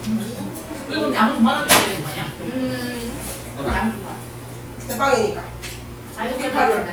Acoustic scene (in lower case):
crowded indoor space